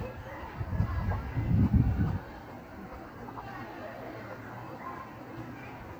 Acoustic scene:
park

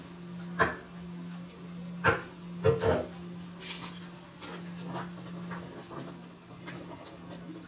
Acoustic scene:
kitchen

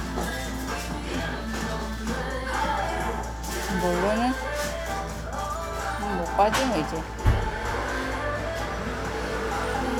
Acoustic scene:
cafe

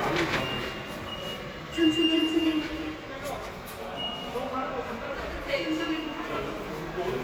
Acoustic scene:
subway station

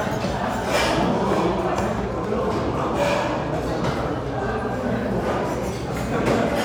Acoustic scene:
restaurant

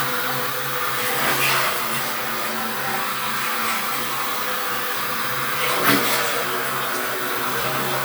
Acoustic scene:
restroom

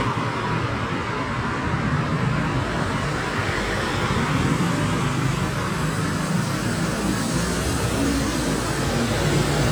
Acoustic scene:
street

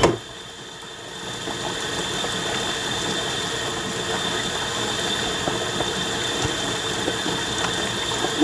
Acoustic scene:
kitchen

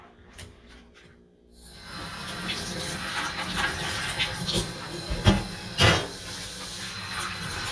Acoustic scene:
kitchen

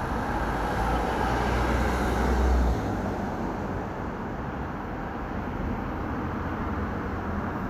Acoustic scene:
street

